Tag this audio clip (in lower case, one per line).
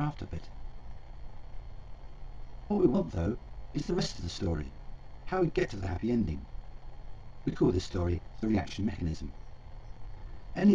speech